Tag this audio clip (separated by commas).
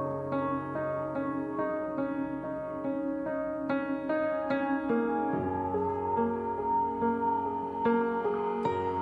Music